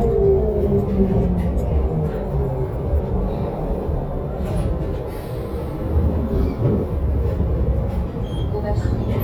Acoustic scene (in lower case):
bus